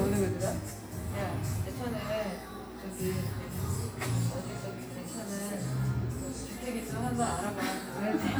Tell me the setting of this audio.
cafe